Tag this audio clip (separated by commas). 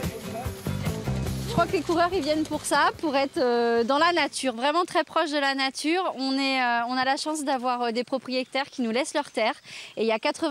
Speech, Music, outside, rural or natural